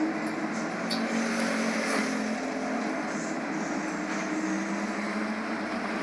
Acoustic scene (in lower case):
bus